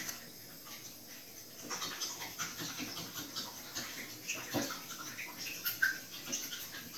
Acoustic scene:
restroom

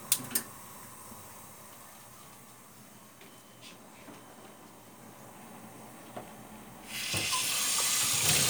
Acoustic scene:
kitchen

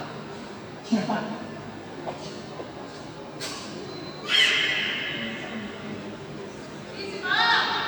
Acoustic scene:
subway station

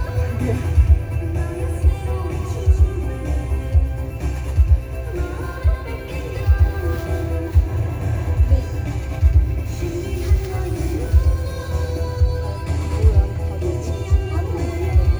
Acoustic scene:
car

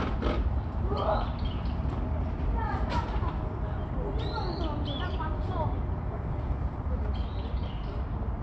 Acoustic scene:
park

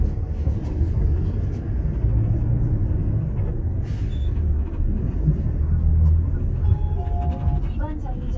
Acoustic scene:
bus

